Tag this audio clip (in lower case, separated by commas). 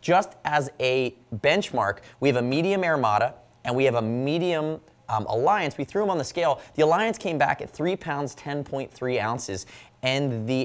speech